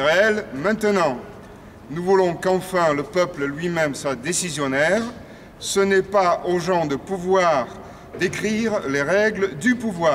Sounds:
Speech

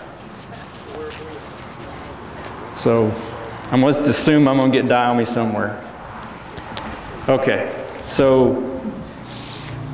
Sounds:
Speech

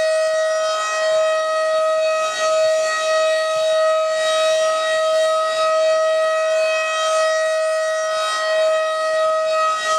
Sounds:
Siren

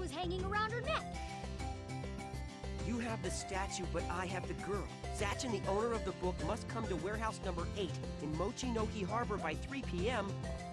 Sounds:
Music, Speech

